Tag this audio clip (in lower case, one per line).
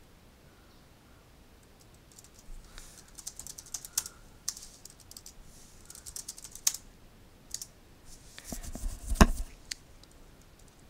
clicking